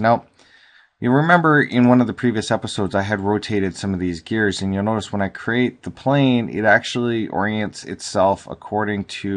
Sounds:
Speech

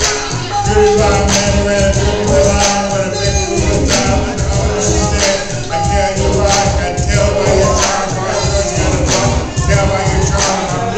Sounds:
Music, Male singing

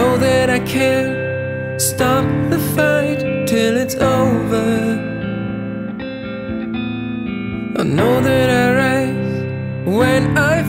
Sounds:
Music, Musical instrument, inside a small room, Singing, Guitar, Plucked string instrument

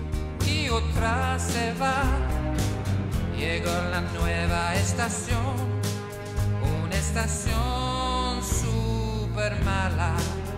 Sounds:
Music

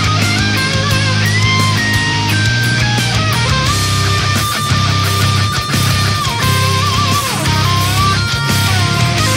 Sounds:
Musical instrument, Strum, Plucked string instrument, Music, Guitar

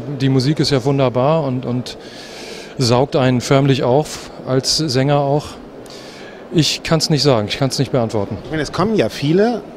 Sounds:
Speech

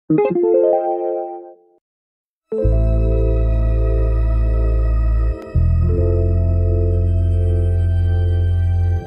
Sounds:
New-age music

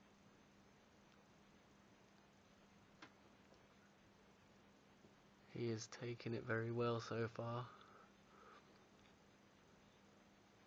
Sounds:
Speech

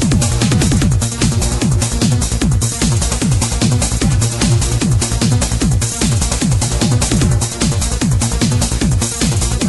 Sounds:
Trance music, Music

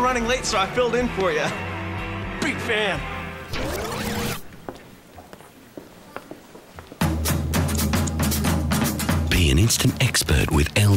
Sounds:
man speaking, Speech, Music

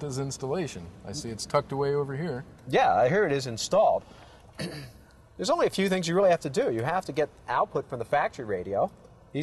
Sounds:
Speech

